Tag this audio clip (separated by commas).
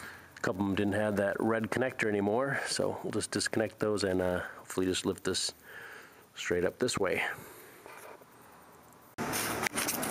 Speech